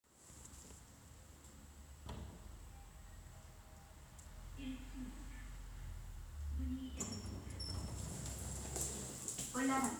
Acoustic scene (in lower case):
elevator